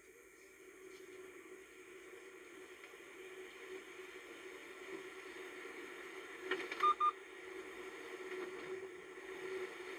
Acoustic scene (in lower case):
car